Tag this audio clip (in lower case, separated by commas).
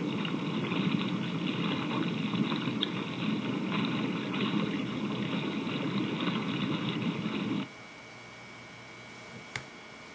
water vehicle